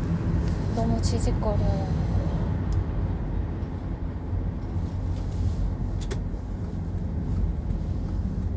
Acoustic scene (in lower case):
car